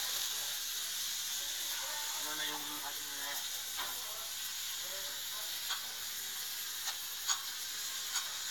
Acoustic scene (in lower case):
restaurant